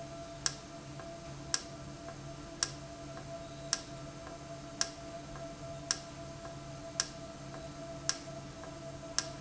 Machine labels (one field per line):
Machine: valve